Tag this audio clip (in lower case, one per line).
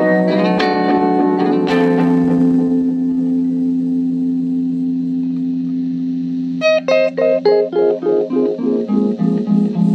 music
guitar
echo
synthesizer
effects unit
plucked string instrument
blues